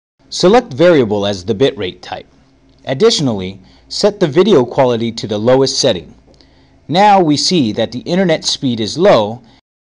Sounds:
Speech

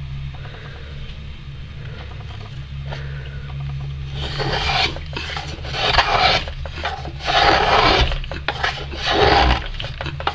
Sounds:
Filing (rasp), Wood

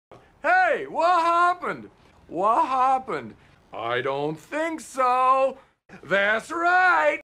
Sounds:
Speech

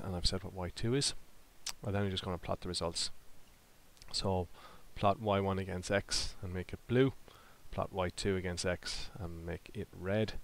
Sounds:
Speech

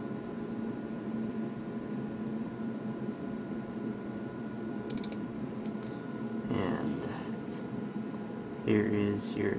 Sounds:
Speech

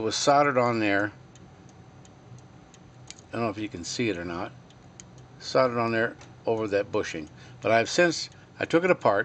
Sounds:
Speech

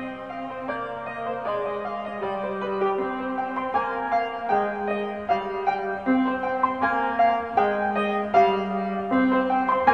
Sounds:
Piano, Music

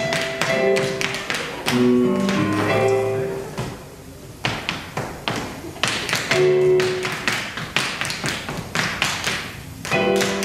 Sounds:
Music, Tap, Speech

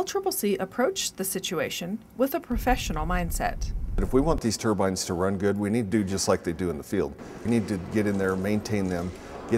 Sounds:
Speech

